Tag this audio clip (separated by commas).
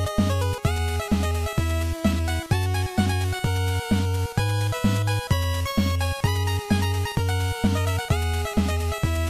Music